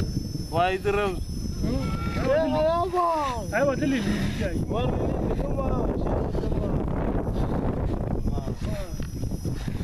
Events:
[0.00, 9.83] mechanisms
[0.00, 9.83] wind noise (microphone)
[0.46, 1.13] male speech
[0.48, 8.93] conversation
[1.55, 1.87] human voice
[1.55, 2.27] liquid
[1.68, 2.27] bleat
[2.14, 4.51] male speech
[2.89, 3.41] liquid
[3.81, 4.53] liquid
[4.65, 5.90] male speech
[5.07, 5.34] liquid
[5.94, 6.55] liquid
[6.04, 6.77] male speech
[7.26, 7.71] liquid
[7.78, 7.96] liquid
[8.25, 8.45] human voice
[8.41, 8.90] liquid
[8.56, 8.65] tick
[8.59, 8.85] human voice
[8.99, 9.09] tick
[9.47, 9.83] liquid

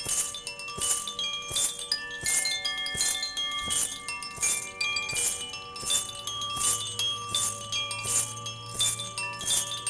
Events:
[0.00, 0.30] bell
[0.00, 9.85] wind chime
[0.63, 1.00] bell
[1.40, 1.67] bell
[2.17, 2.46] bell
[2.89, 3.12] bell
[3.61, 3.82] bell
[4.30, 4.55] bell
[5.00, 5.36] bell
[5.70, 6.02] bell
[6.46, 6.73] bell
[7.20, 7.43] bell
[7.91, 8.20] bell
[8.60, 8.95] bell
[9.32, 9.59] bell

